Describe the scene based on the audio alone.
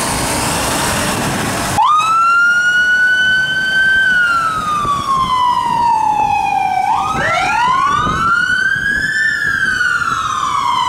Fire engine siren